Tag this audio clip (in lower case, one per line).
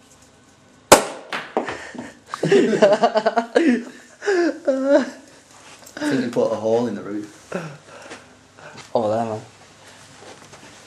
inside a small room
speech